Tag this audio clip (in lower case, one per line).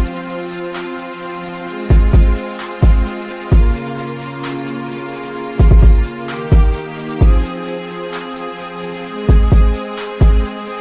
music